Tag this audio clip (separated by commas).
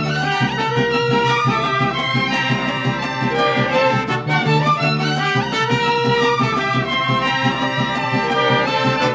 Music, Musical instrument, Violin